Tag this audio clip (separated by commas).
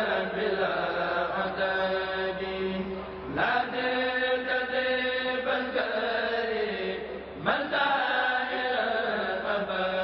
Mantra